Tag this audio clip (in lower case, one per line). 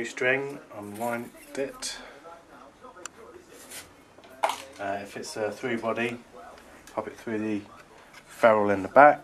speech